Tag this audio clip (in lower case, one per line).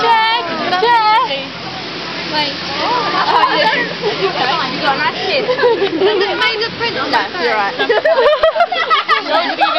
outside, urban or man-made
speech